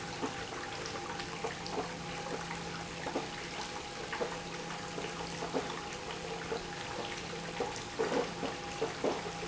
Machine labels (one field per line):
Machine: pump